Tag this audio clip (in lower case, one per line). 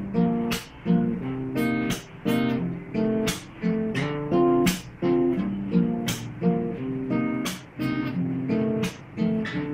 inside a small room
music